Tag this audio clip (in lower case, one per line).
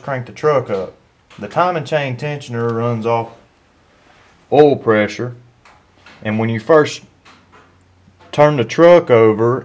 speech